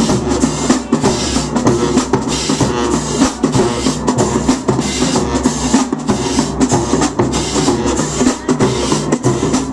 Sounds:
Music

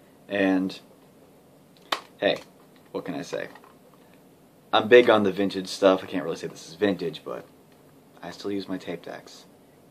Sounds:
inside a small room, Speech

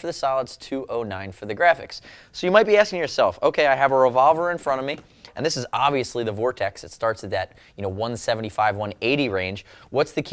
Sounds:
Speech

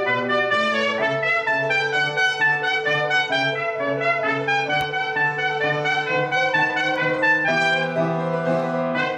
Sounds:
Trumpet, Brass instrument, Piano, Keyboard (musical)

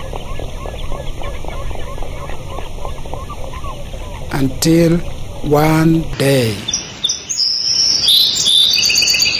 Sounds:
Speech

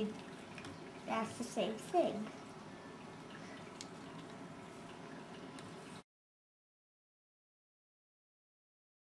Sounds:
inside a small room, Speech

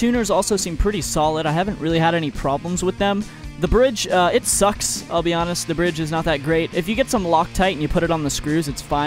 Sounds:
Music, Speech, Musical instrument

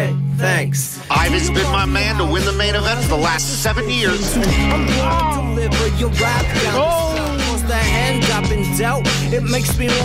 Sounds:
Speech

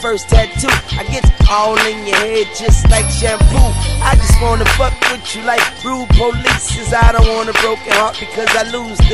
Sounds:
Music

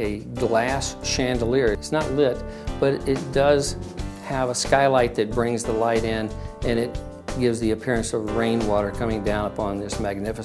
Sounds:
Music, Speech

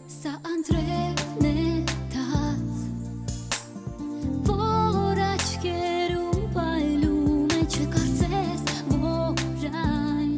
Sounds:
Music

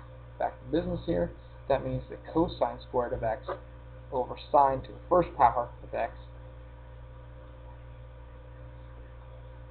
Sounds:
Speech

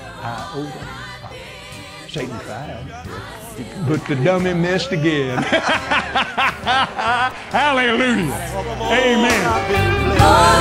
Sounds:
Speech, Music

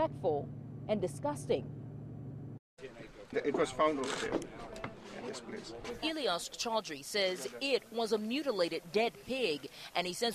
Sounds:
Speech

